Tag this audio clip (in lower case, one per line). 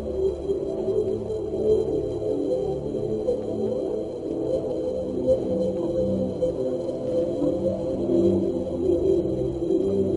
music